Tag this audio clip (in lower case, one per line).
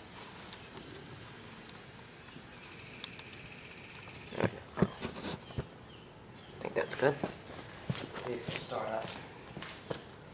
speech